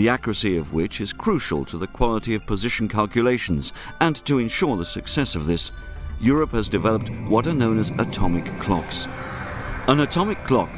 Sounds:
speech, music

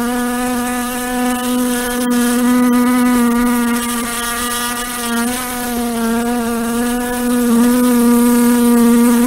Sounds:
fly

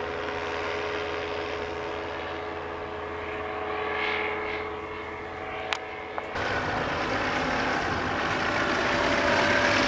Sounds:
aircraft, engine, vehicle

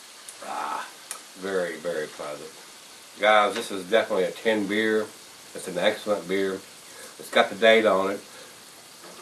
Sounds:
inside a small room, speech

